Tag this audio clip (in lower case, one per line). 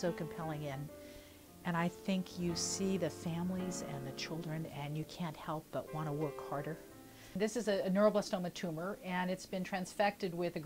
speech
music